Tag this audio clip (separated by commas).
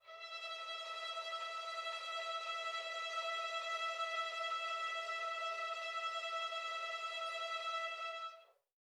Musical instrument, Music, Bowed string instrument